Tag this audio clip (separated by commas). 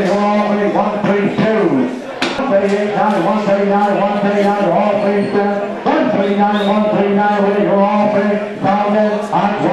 Speech